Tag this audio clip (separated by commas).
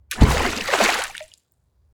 Liquid, splatter, Water